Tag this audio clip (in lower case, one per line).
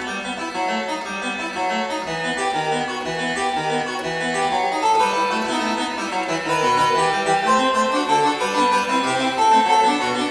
playing harpsichord